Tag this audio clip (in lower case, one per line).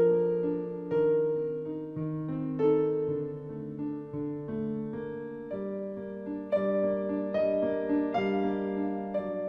tender music
music